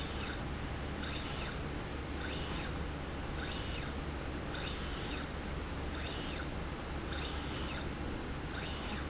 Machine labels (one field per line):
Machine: slide rail